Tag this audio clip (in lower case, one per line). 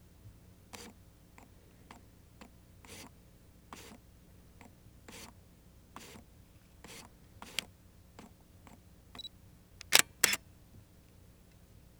camera
mechanisms